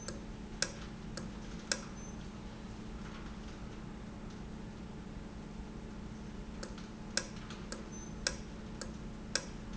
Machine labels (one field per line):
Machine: valve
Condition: normal